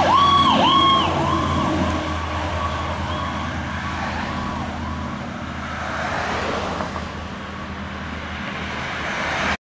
An emergency vehicle passes by with its siren blaring